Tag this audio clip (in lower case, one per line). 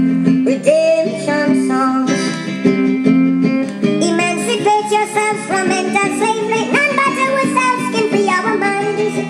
inside a small room
music
synthetic singing